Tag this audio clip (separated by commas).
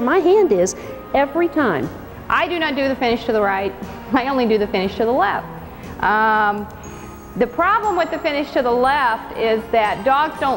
Speech, Music